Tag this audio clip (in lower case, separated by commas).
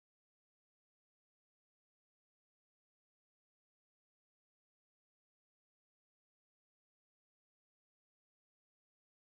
heavy engine (low frequency), vehicle, motorcycle